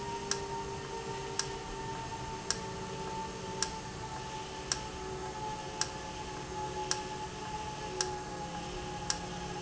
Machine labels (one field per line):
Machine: valve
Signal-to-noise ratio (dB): -6 dB